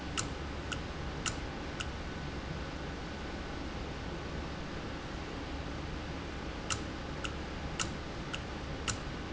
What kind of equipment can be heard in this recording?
valve